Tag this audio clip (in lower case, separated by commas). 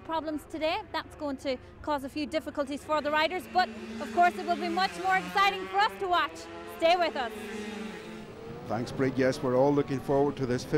speech, vehicle, motorcycle, auto racing